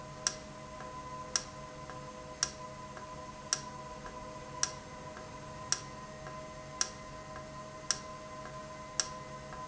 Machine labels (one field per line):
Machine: valve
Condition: normal